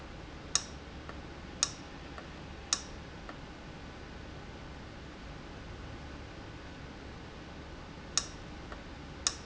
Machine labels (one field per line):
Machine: valve